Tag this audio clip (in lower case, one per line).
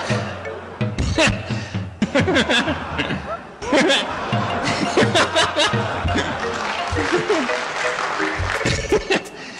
music